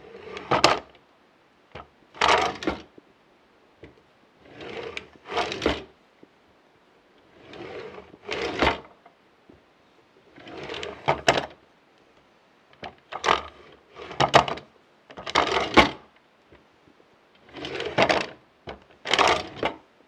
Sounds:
drawer open or close, domestic sounds

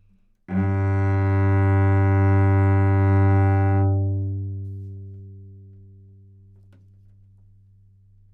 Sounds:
music, bowed string instrument, musical instrument

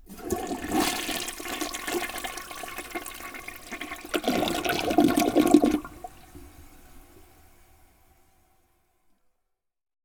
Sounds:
home sounds, toilet flush

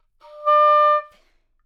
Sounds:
wind instrument, musical instrument, music

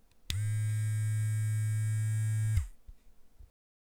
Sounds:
domestic sounds

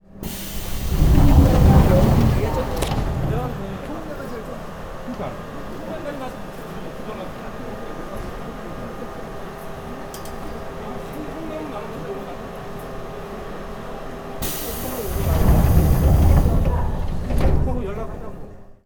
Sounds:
rail transport, subway, vehicle

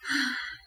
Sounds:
human voice, breathing, respiratory sounds, sigh

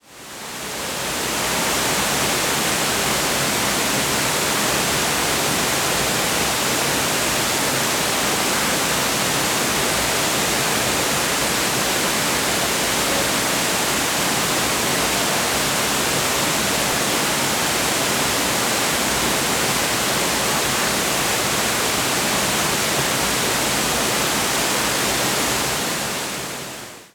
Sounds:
water

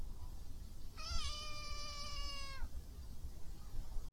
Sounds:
animal, domestic animals, meow, cat

